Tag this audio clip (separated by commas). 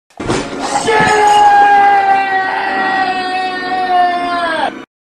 Sound effect, Smash